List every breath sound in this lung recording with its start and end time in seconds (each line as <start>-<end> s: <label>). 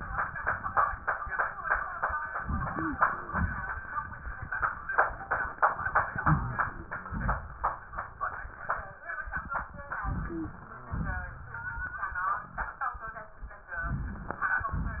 2.41-3.27 s: inhalation
2.68-3.03 s: wheeze
3.27-3.86 s: exhalation
6.18-6.66 s: wheeze
6.21-7.06 s: inhalation
7.08-7.68 s: exhalation
10.06-10.91 s: inhalation
10.26-10.61 s: wheeze
10.89-11.49 s: inhalation
10.89-11.49 s: exhalation
14.65-15.00 s: exhalation